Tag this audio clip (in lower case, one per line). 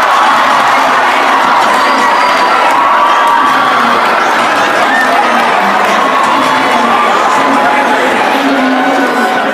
crowd
cheering
speech
people crowd